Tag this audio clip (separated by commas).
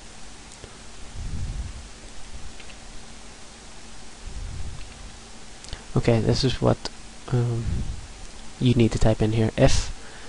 Silence, Speech